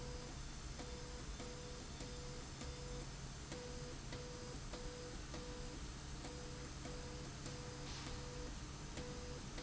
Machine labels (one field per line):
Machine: slide rail